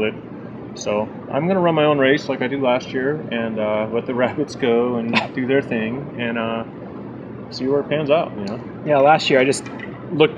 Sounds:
outside, urban or man-made, speech

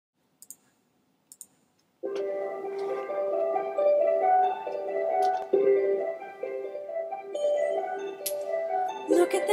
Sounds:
vibraphone

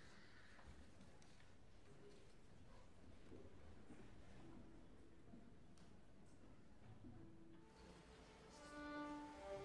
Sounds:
fiddle, musical instrument, music

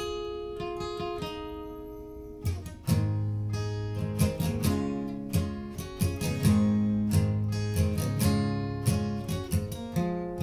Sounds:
musical instrument, plucked string instrument, strum, guitar, music

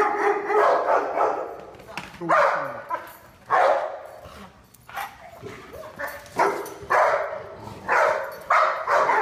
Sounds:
speech, dog bow-wow, bow-wow

